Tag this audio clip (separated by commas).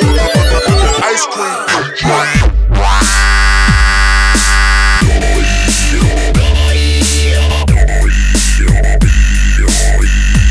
Music, Speech